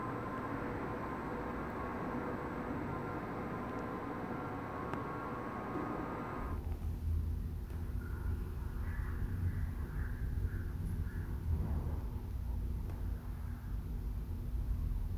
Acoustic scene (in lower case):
elevator